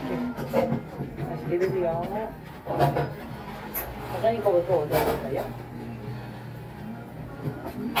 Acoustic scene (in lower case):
cafe